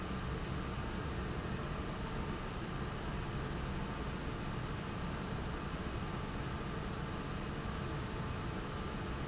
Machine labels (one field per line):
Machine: fan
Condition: abnormal